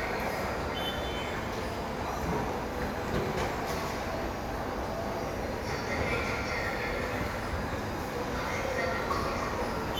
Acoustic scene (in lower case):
subway station